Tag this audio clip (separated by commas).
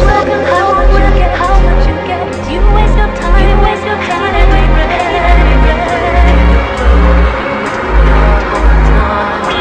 Dubstep, Music